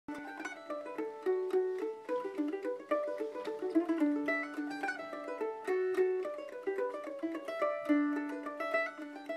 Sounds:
mandolin
plucked string instrument
music
musical instrument
guitar
country
ukulele

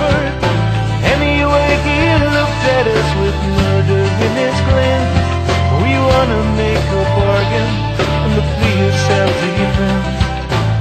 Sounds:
music
country

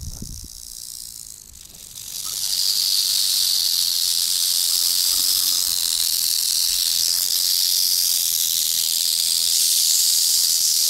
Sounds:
snake rattling

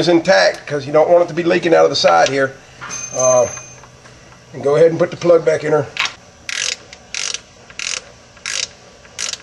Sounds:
speech

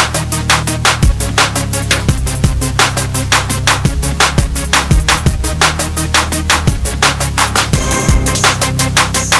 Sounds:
hum

